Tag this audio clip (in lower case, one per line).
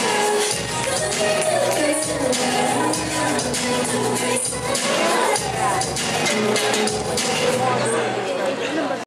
music
speech